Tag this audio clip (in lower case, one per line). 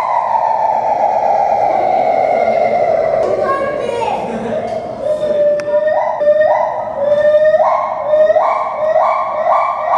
gibbon howling